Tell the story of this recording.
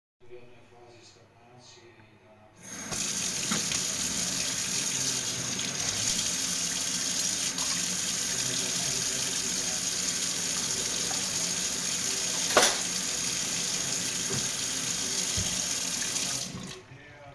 I let the water run and then washed off some cutlery, drying them and then placing them to the rest of the cutlery in the open drawer.